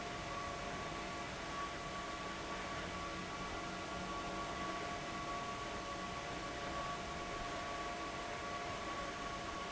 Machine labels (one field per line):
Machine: fan